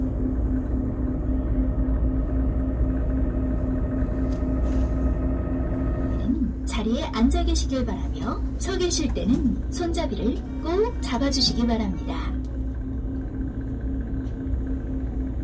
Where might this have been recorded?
on a bus